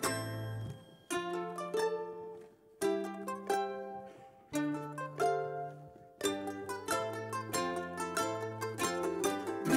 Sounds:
Singing, Music, Ukulele

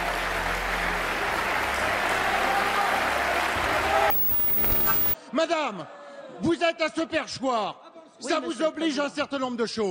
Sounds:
Speech

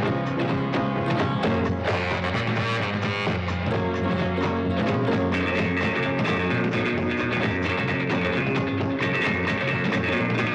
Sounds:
Music

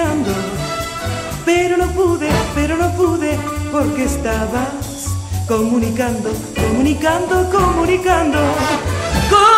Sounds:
Music

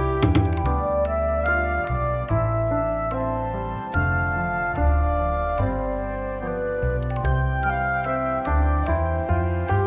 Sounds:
running electric fan

